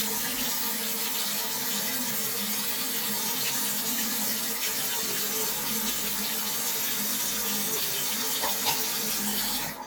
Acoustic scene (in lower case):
restroom